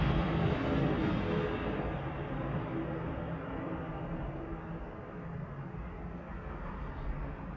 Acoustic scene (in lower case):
residential area